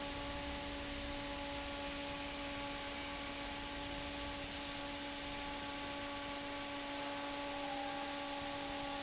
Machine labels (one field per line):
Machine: fan